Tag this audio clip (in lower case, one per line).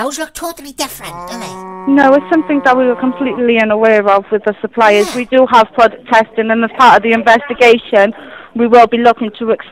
speech